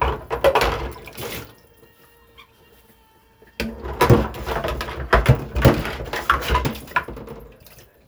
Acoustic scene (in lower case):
kitchen